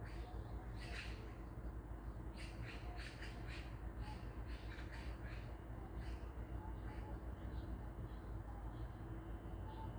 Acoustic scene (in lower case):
park